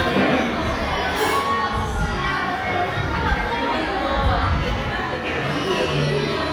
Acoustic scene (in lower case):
crowded indoor space